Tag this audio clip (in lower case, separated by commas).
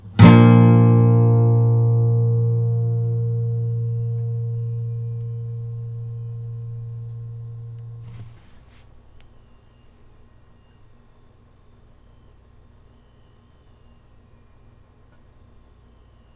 plucked string instrument, music, acoustic guitar, musical instrument, guitar